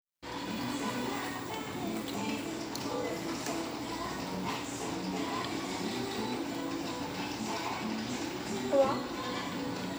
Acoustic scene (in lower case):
cafe